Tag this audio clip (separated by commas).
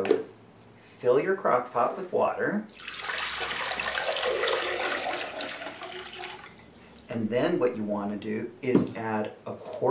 inside a small room, Speech